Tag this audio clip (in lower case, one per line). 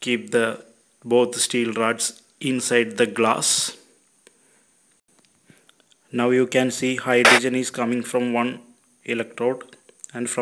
speech